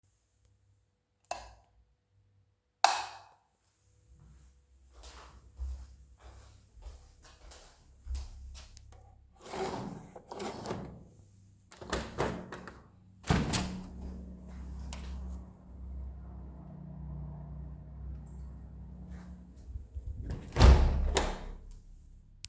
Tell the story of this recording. I turned the lights on than off. I walked to the window, opened blinds and opened window. Looked outside and closed the window.